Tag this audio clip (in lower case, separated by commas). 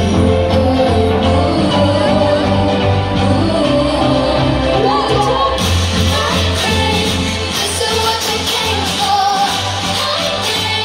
female singing, music, choir